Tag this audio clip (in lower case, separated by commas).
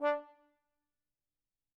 music, musical instrument, brass instrument